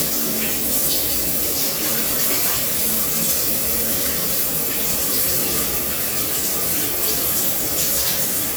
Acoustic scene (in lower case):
restroom